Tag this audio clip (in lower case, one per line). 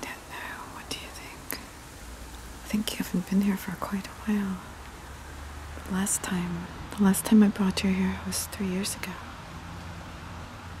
people whispering
whispering